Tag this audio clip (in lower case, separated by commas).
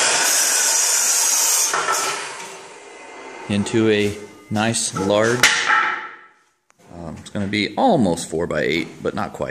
sawing, wood